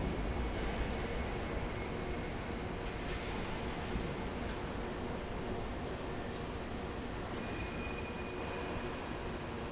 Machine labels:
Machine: fan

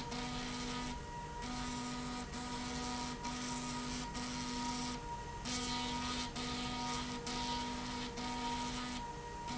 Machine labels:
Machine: slide rail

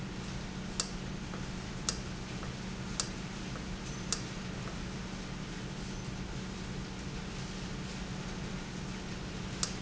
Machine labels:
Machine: valve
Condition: normal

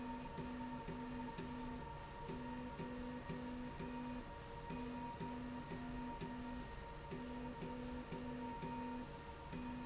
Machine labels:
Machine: slide rail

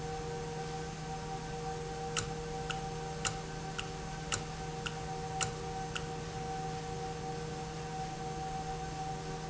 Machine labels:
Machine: valve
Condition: normal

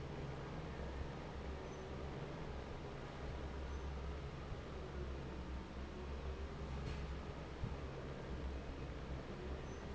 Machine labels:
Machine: fan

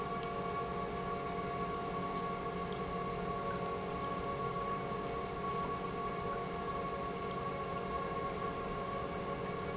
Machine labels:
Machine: pump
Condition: normal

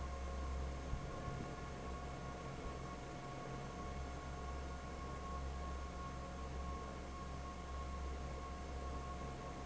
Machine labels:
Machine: fan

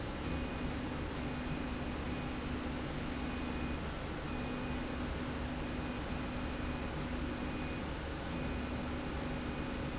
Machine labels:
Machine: slide rail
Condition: normal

